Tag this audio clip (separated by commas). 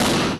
Explosion